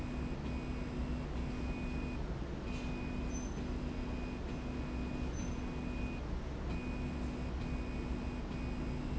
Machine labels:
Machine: slide rail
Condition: normal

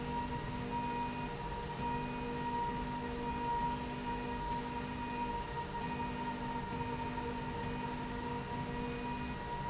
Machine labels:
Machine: slide rail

